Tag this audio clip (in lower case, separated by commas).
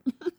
laughter, human voice